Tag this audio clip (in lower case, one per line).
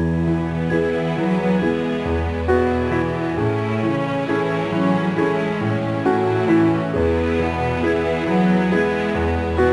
background music